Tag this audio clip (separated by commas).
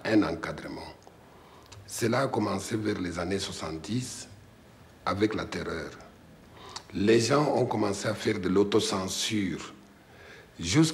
inside a small room, Speech